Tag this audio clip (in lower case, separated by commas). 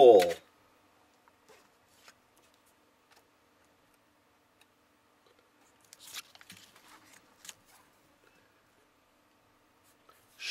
inside a small room